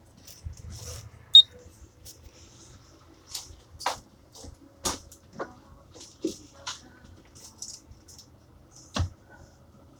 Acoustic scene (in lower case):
bus